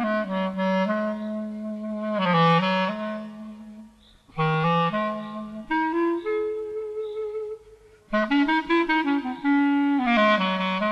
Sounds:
Music, woodwind instrument, Musical instrument, Clarinet

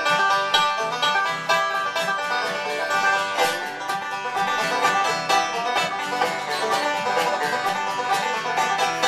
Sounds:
playing banjo, Music, Banjo

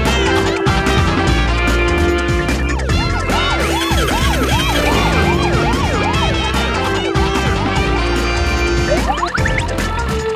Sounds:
Emergency vehicle, Music

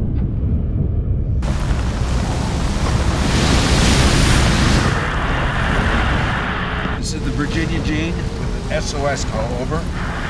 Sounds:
Speech, outside, rural or natural

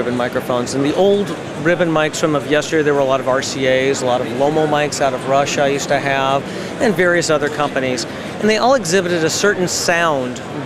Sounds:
Speech

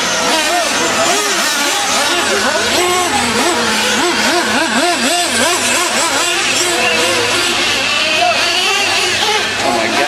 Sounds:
Speech, Car

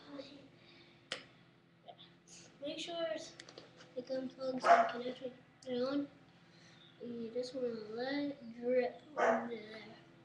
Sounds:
Speech

